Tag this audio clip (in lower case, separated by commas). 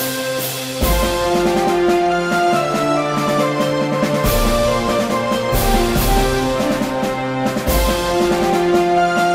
music, theme music